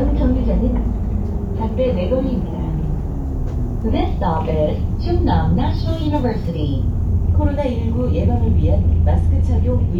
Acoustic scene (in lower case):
bus